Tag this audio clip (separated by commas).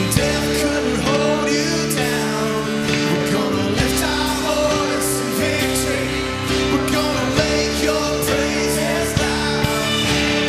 Music